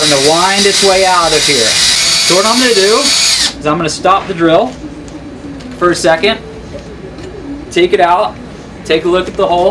A drill runs and squeaks and stop then a man talks